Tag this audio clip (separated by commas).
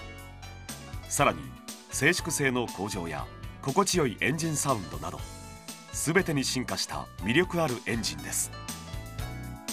Speech, Music